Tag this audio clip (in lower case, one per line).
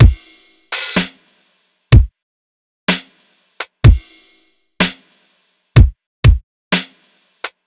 percussion
music
drum kit
musical instrument